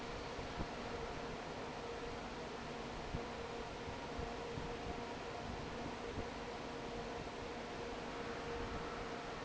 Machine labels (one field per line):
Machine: fan